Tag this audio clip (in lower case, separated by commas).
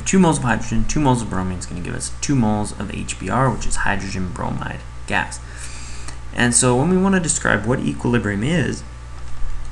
speech